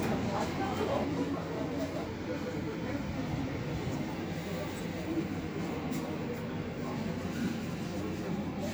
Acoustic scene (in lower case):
subway station